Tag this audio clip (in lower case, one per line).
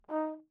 music
brass instrument
musical instrument